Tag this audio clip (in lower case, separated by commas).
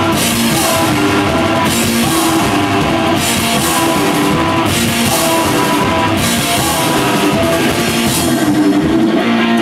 musical instrument, singing, rock music, guitar, music, orchestra